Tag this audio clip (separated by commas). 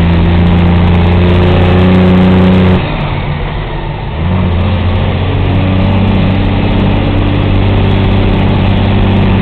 Vehicle, revving, Accelerating